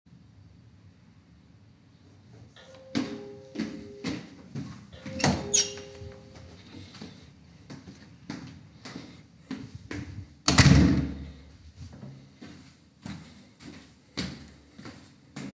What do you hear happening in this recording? The doorbell rings, and I immediately walk to the door and open it, with the bell, footsteps, and door opening all happening simultaneously.